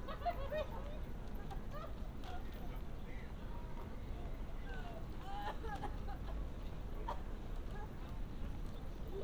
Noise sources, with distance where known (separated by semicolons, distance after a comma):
person or small group talking, near